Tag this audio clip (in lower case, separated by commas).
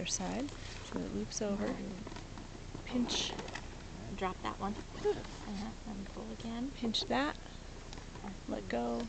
speech